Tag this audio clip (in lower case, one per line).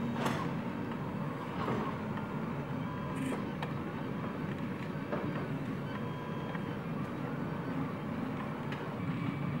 printer printing
printer